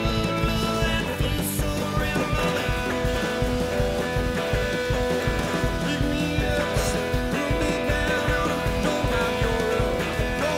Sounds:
Music

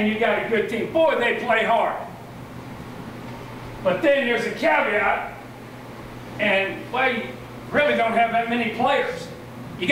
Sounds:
Speech

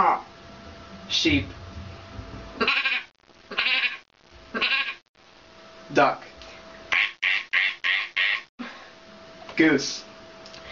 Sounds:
Quack, inside a small room, Speech

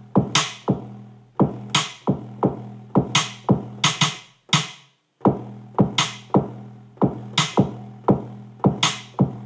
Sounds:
Music, inside a small room

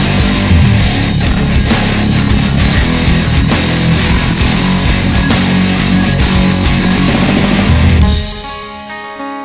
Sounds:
Music

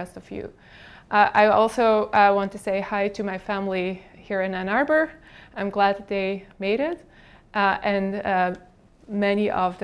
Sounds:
Speech

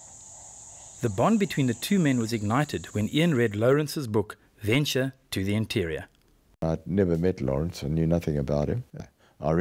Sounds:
Speech

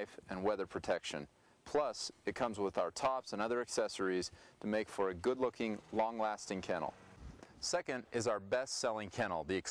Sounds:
Speech

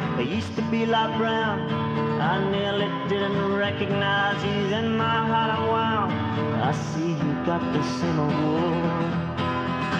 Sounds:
Music

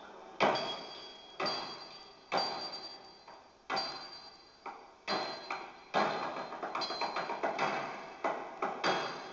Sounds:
Flamenco, Music

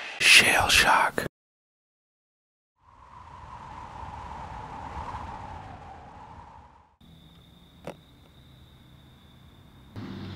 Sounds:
Speech

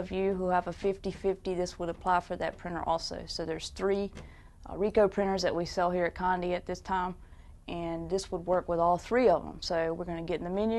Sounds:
Speech

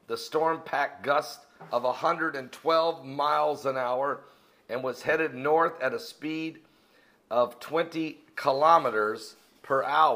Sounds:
Speech

